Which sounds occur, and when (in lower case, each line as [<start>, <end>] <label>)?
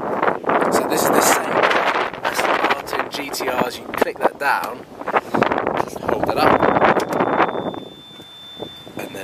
[0.01, 9.23] wind
[0.63, 1.60] male speech
[2.22, 4.80] male speech
[4.59, 4.65] tick
[5.11, 5.38] breathing
[5.80, 6.69] male speech
[6.59, 9.23] bleep
[6.93, 7.11] generic impact sounds
[7.70, 7.80] generic impact sounds
[8.13, 8.21] generic impact sounds